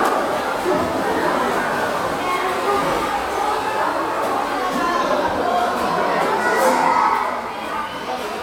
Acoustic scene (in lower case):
crowded indoor space